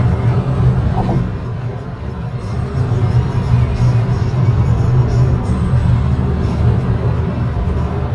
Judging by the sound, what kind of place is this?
car